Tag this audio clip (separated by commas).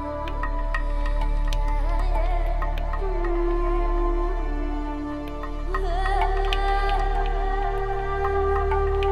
Music